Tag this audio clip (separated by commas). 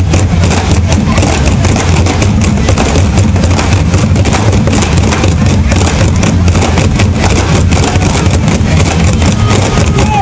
Percussion, Music